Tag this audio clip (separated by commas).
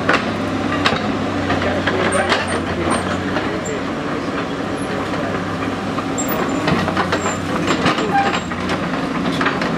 Speech